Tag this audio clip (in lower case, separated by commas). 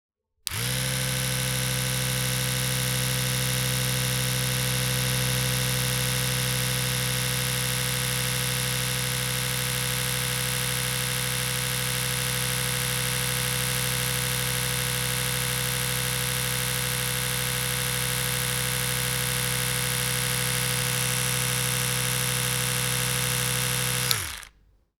home sounds